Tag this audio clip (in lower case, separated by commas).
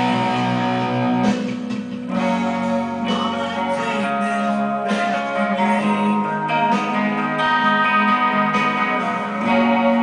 strum, electric guitar, musical instrument, guitar, bass guitar, music, plucked string instrument